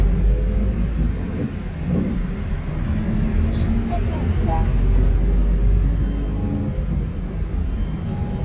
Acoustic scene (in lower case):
bus